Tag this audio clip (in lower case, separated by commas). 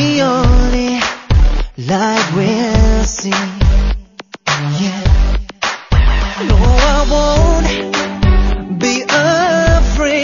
music